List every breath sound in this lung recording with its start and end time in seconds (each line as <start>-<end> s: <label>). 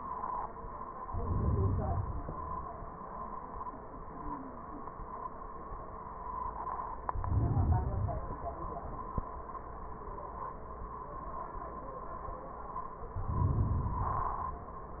1.01-2.12 s: inhalation
2.12-2.96 s: exhalation
7.09-7.90 s: inhalation
7.93-8.74 s: exhalation
13.14-13.97 s: inhalation
14.00-14.92 s: exhalation